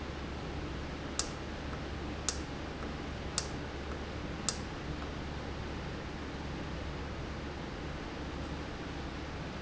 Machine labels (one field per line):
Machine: valve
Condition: normal